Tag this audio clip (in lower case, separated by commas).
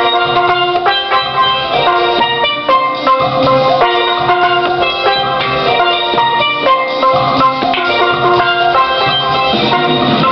musical instrument, music